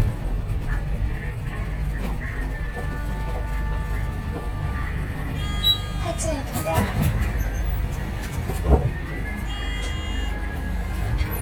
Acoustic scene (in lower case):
bus